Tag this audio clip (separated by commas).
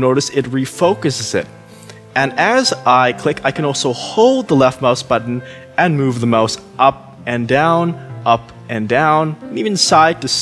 Speech, Music